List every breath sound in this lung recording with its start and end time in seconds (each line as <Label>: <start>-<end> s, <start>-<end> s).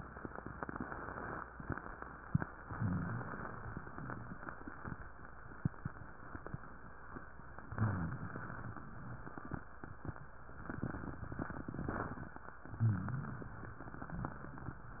Inhalation: 2.64-3.81 s, 7.66-8.87 s, 12.78-13.75 s
Rhonchi: 2.76-3.27 s, 7.66-8.35 s, 12.78-13.44 s